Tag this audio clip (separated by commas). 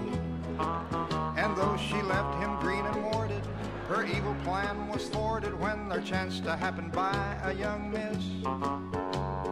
Music